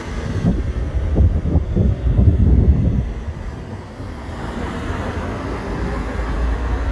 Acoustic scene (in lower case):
street